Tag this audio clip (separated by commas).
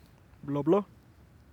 Speech, Human voice